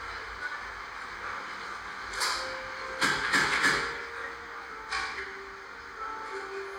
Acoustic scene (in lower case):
cafe